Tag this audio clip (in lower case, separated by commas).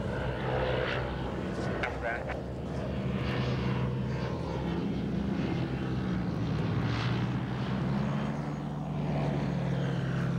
speech, vehicle